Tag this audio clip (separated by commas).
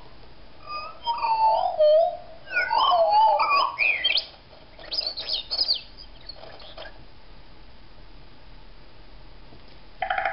bird call, Bird, Chirp